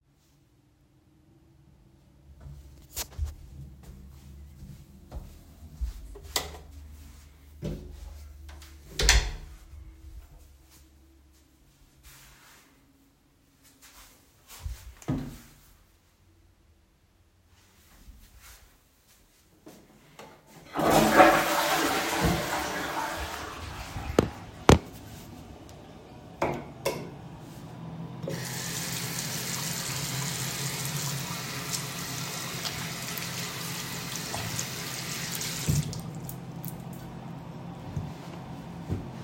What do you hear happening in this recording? I turned on the lights, closed the bathroom door and flushed the toilet. I used soap to wash my hands and dried them with a towel.